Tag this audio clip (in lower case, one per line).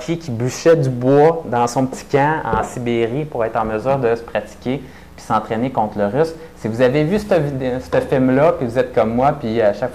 speech